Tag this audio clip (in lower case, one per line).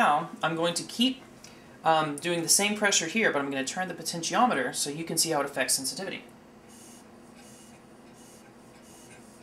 speech
inside a small room